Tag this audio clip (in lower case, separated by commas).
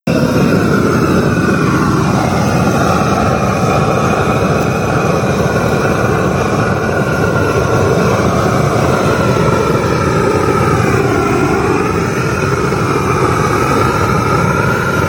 fire